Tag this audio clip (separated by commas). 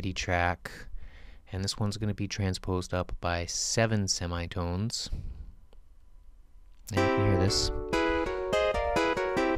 Music, Speech